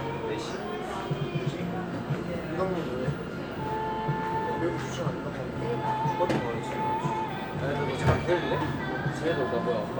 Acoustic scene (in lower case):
cafe